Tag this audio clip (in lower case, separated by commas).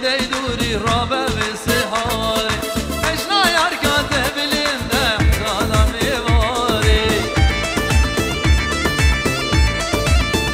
music, wedding music